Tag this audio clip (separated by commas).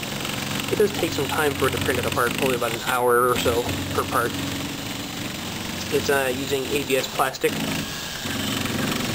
Speech, Printer